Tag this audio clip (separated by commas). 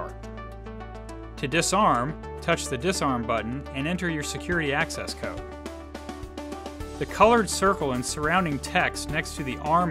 Speech, Music